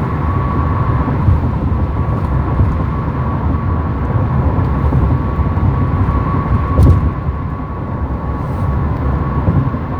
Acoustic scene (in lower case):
car